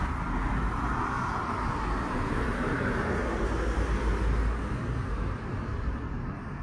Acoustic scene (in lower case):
street